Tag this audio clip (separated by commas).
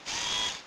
Mechanisms, Camera